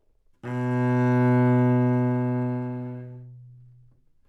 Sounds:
Music, Musical instrument, Bowed string instrument

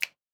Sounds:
Finger snapping, Hands

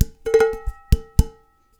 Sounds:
dishes, pots and pans, Domestic sounds

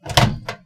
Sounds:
Microwave oven, Domestic sounds

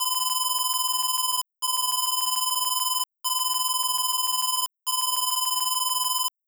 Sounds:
Alarm

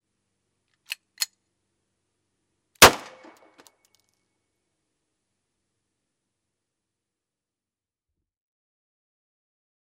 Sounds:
gunfire, Explosion

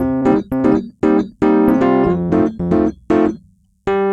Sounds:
Piano, Music, Musical instrument, Keyboard (musical)

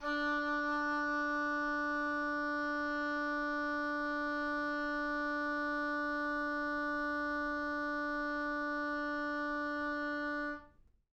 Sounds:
Music, Musical instrument, Wind instrument

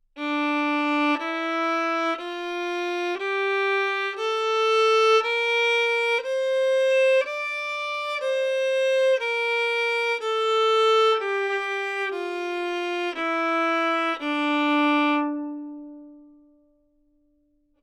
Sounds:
Music, Musical instrument, Bowed string instrument

